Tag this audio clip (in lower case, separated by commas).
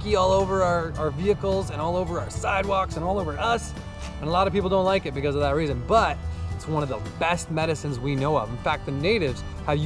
music, speech